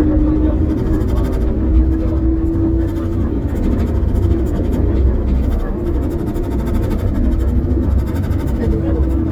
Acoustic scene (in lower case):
bus